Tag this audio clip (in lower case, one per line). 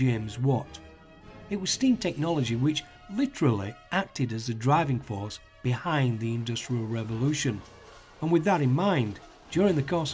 speech
music